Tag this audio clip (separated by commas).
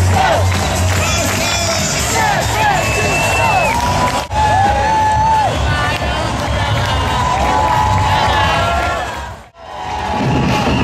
Music, Whoop